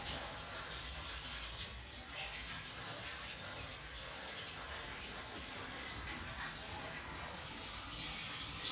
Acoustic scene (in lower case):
kitchen